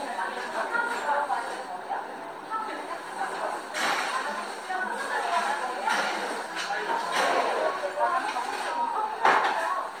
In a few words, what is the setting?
cafe